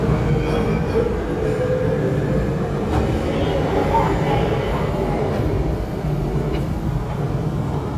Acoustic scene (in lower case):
subway train